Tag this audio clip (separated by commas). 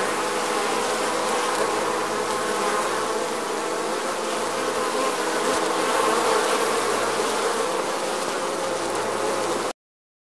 wasp